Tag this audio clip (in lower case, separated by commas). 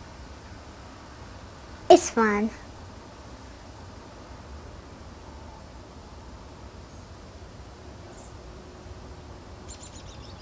speech